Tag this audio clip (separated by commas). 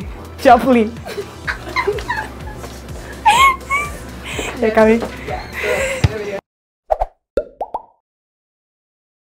Plop, Speech, Music, Female speech